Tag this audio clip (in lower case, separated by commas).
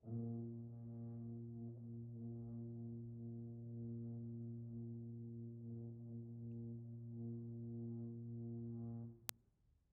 music, musical instrument, brass instrument